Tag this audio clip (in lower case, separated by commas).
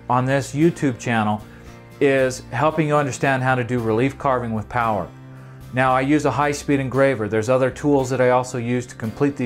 speech, music